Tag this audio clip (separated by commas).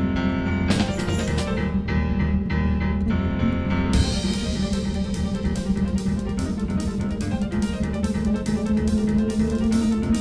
Music